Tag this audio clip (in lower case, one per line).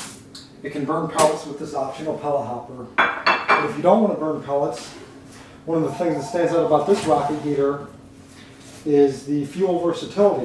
speech